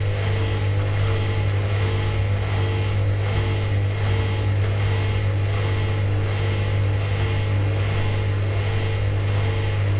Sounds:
Engine

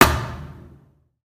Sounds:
thud

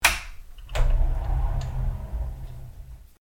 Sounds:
Sliding door, home sounds, Door

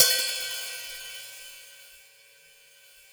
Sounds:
Cymbal, Percussion, Musical instrument, Music, Hi-hat

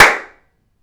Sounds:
Hands, Clapping

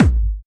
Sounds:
Thump

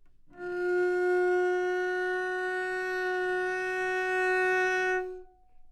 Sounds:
Musical instrument, Bowed string instrument, Music

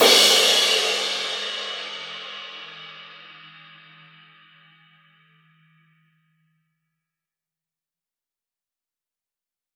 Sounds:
Music, Musical instrument, Percussion, Crash cymbal, Cymbal

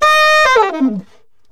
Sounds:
Wind instrument, Music, Musical instrument

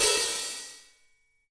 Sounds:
Percussion, Musical instrument, Music, Crash cymbal, Cymbal

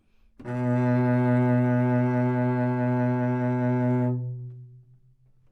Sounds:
Musical instrument, Bowed string instrument, Music

